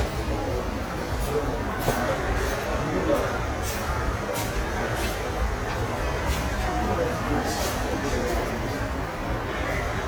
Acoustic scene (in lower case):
subway station